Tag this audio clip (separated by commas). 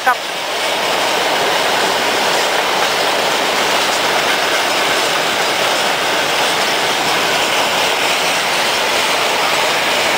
Train, train wagon, outside, urban or man-made, Speech, Vehicle